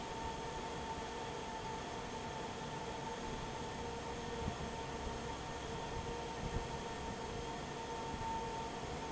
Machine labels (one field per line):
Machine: fan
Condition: normal